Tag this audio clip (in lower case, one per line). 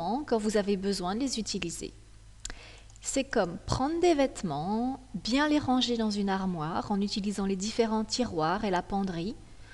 speech